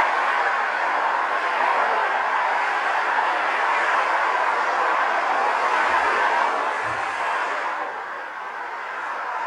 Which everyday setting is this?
street